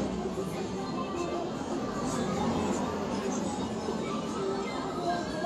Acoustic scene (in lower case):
street